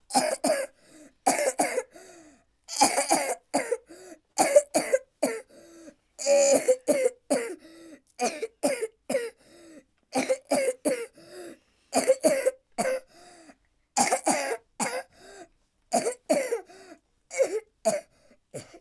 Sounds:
respiratory sounds, cough

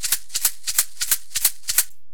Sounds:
music, rattle (instrument), percussion, musical instrument

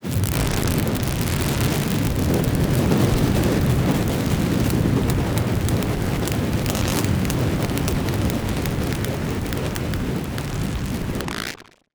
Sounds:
crackle

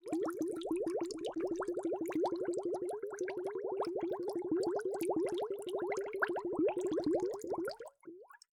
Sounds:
water, gurgling

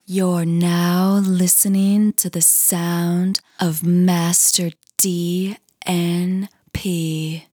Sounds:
human voice, female speech, speech

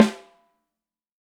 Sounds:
musical instrument, percussion, music, snare drum, drum

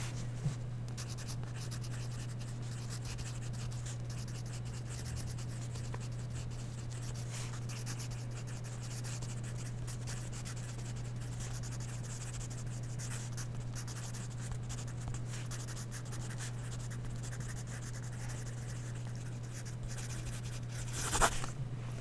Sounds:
domestic sounds, writing

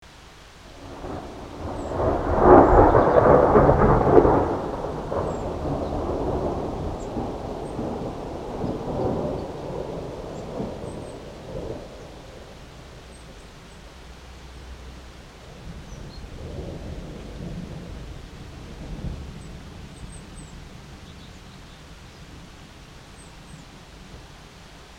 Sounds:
thunderstorm, thunder, rain, water

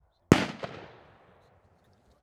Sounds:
gunfire, explosion

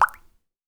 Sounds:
water, raindrop, rain

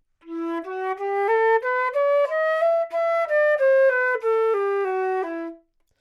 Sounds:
musical instrument, wind instrument, music

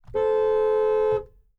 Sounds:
vehicle, car, motor vehicle (road), alarm, honking

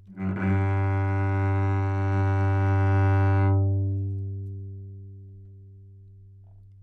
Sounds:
music, bowed string instrument, musical instrument

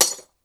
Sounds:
shatter, glass

